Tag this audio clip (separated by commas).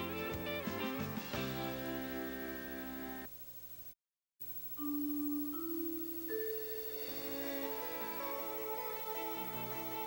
Music, Vibraphone